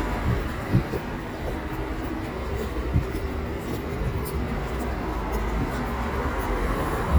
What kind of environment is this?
residential area